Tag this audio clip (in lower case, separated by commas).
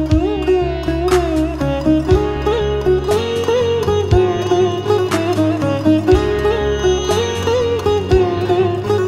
playing sitar